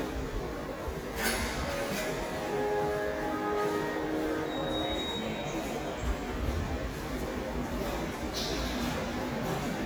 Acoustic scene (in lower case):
subway station